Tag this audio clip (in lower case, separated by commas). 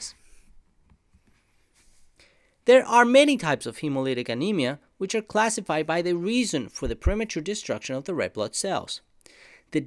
speech